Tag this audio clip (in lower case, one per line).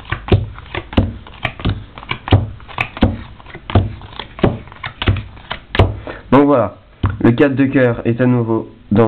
speech